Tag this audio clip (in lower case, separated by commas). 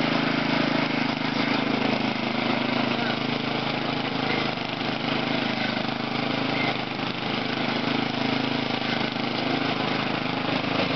speech